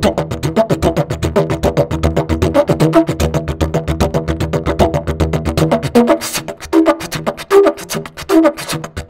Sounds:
playing didgeridoo

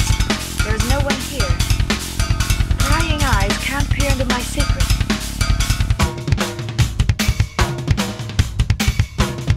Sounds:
Bass drum, Drum kit

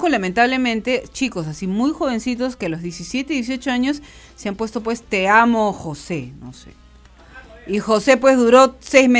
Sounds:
Speech

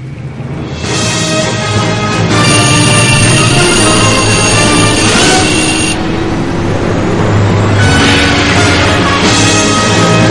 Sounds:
Music

